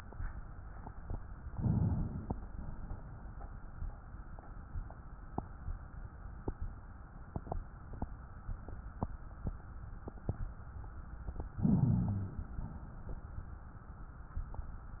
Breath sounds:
1.39-2.46 s: inhalation
2.45-3.75 s: exhalation
11.48-12.54 s: inhalation
12.56-13.99 s: exhalation

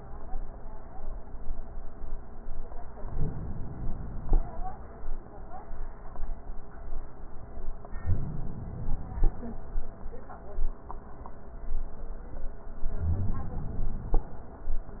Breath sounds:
2.94-4.34 s: inhalation
7.85-9.24 s: inhalation
12.81-14.20 s: inhalation
12.99-13.40 s: wheeze

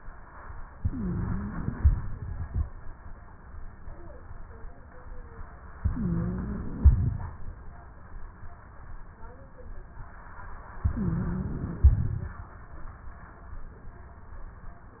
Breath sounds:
0.76-1.73 s: inhalation
0.76-1.73 s: wheeze
1.73-2.60 s: exhalation
1.73-2.60 s: crackles
5.78-6.80 s: inhalation
5.78-6.80 s: wheeze
6.80-7.67 s: exhalation
6.80-7.67 s: crackles
10.81-11.84 s: inhalation
10.81-11.84 s: wheeze
11.86-12.52 s: exhalation
11.86-12.52 s: crackles

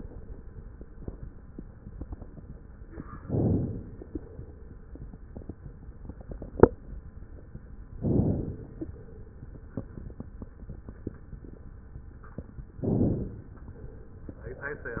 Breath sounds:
3.21-4.20 s: inhalation
3.21-4.20 s: crackles
7.99-8.98 s: inhalation
7.99-8.98 s: crackles
12.83-13.81 s: inhalation
12.83-13.81 s: crackles

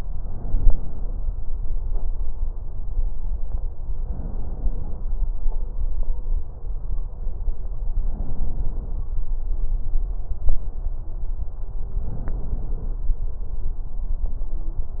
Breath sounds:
4.06-5.11 s: inhalation
8.02-9.07 s: inhalation
12.02-13.07 s: inhalation

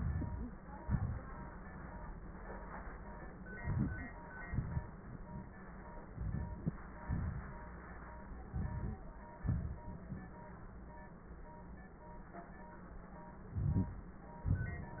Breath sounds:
0.00-0.57 s: inhalation
0.76-1.22 s: exhalation
3.66-4.18 s: inhalation
4.46-5.31 s: exhalation
6.13-6.78 s: inhalation
7.06-7.74 s: exhalation
8.52-9.05 s: inhalation
9.43-10.38 s: exhalation
13.56-14.19 s: inhalation

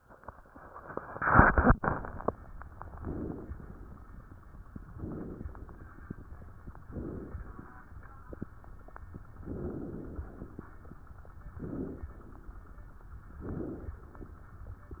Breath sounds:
2.96-3.52 s: inhalation
3.54-4.63 s: exhalation
3.54-4.63 s: crackles
4.93-5.49 s: inhalation
5.47-6.73 s: crackles
6.87-7.42 s: inhalation
9.49-10.28 s: inhalation
10.22-11.16 s: exhalation
10.26-11.59 s: crackles
11.59-12.12 s: inhalation
13.43-13.96 s: inhalation

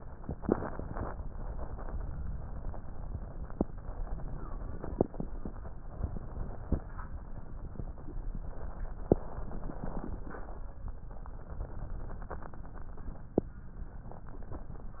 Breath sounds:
0.28-1.14 s: inhalation
2.27-3.11 s: exhalation
3.83-5.22 s: inhalation
6.00-6.92 s: exhalation
8.44-10.63 s: inhalation
11.13-13.32 s: exhalation

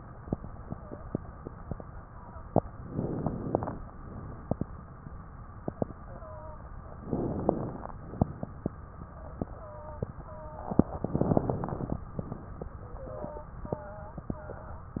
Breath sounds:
0.67-1.03 s: wheeze
2.07-2.43 s: wheeze
2.87-3.72 s: inhalation
6.01-6.62 s: wheeze
7.04-7.89 s: inhalation
9.54-10.15 s: wheeze
10.25-10.85 s: wheeze
11.02-12.01 s: inhalation
12.96-13.57 s: wheeze
13.68-14.29 s: wheeze
14.31-14.91 s: wheeze

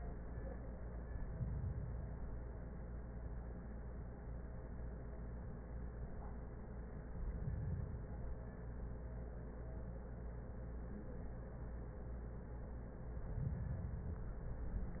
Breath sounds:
1.08-2.58 s: inhalation
7.02-8.48 s: inhalation
13.40-14.26 s: inhalation

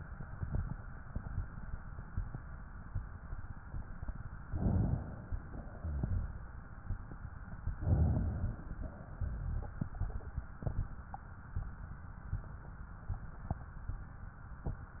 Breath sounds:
4.37-5.56 s: inhalation
5.56-6.83 s: exhalation
7.65-9.13 s: inhalation
9.17-10.63 s: exhalation

